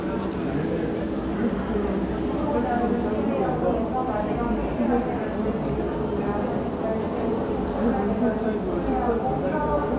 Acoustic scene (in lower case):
crowded indoor space